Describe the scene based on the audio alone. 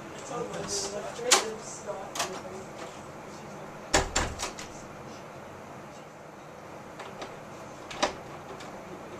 A person is speaking and opening a door